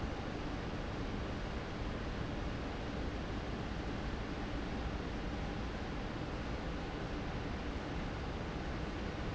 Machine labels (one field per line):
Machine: fan